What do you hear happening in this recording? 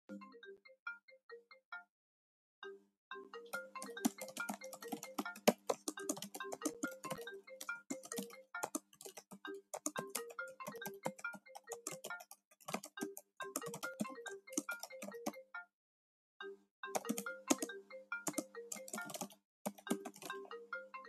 the phone is ringing while typing on a keyboard in a static setting